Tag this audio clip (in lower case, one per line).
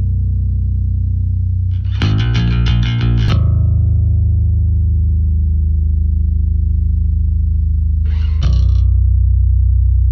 bass guitar
guitar
distortion
plucked string instrument
musical instrument
playing bass guitar
music